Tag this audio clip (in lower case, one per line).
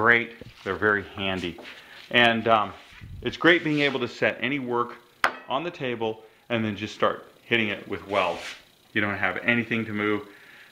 inside a small room
speech